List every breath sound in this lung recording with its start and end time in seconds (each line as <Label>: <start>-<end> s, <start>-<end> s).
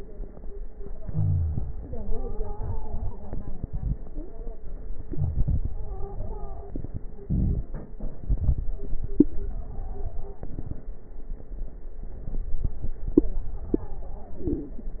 Inhalation: 4.88-5.86 s, 8.01-9.26 s, 10.37-11.06 s, 14.31-15.00 s
Exhalation: 0.89-4.01 s, 7.04-7.96 s
Wheeze: 0.99-1.77 s
Stridor: 1.77-3.68 s, 4.06-4.56 s, 5.71-6.77 s, 9.44-10.49 s, 13.21-14.50 s
Crackles: 8.01-9.26 s